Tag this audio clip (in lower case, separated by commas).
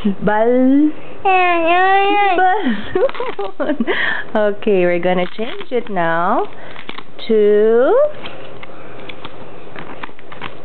speech